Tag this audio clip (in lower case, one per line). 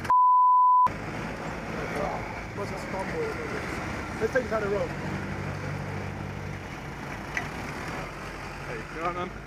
vehicle
speech